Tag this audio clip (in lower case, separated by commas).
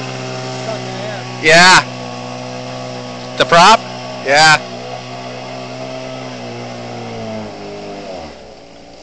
speech, speedboat